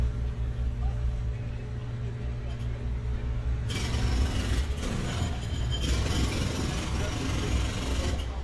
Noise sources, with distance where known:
jackhammer

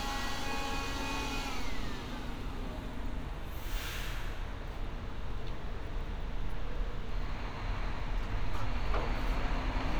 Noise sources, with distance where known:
large-sounding engine; small or medium rotating saw

